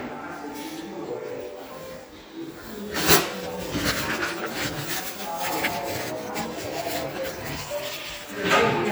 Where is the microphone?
in a restroom